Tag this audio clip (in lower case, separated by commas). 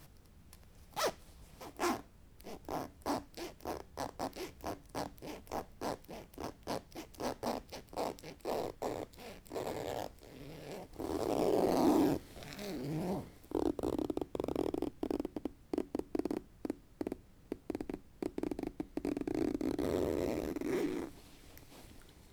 home sounds, zipper (clothing)